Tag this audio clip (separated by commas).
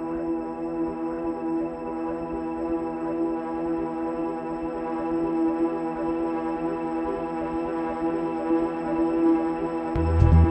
Music, Electronic dance music